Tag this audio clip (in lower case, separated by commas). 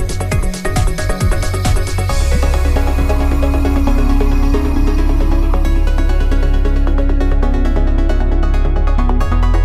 music